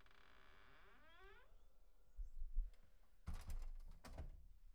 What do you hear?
metal door closing